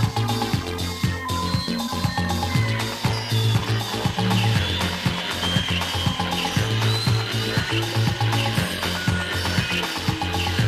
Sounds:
music, techno

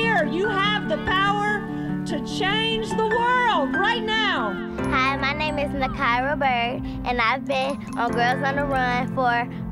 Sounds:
speech, music

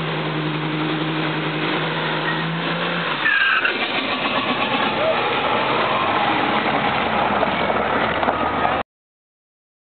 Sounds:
vehicle

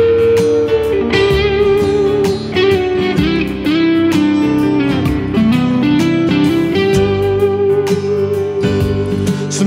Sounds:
guitar, music

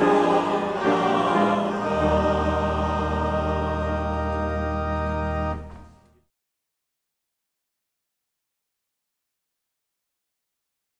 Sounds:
singing, organ, music

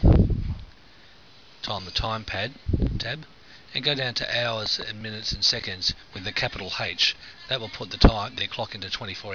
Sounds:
speech

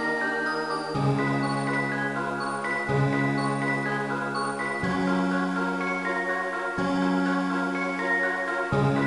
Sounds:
music

